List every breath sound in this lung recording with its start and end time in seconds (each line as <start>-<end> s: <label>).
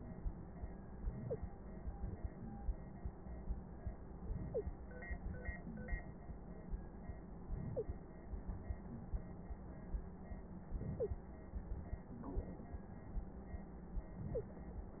1.02-1.52 s: inhalation
1.28-1.37 s: wheeze
4.27-4.76 s: inhalation
4.51-4.64 s: wheeze
7.44-8.04 s: inhalation
7.75-7.84 s: wheeze
10.74-11.23 s: inhalation
10.98-11.07 s: wheeze
14.16-14.65 s: inhalation
14.33-14.42 s: wheeze